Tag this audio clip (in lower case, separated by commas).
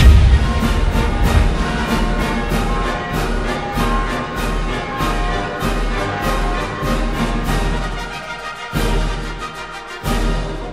music